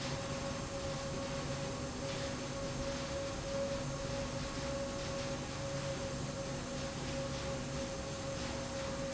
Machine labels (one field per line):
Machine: slide rail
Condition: normal